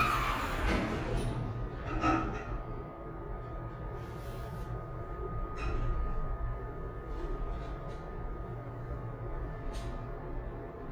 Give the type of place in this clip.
elevator